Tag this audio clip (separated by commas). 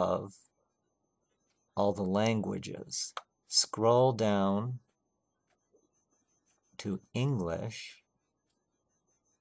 Speech